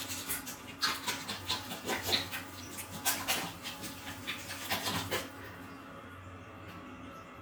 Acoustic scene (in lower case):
restroom